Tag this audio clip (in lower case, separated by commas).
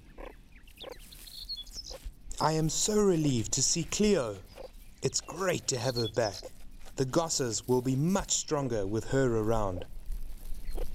speech, animal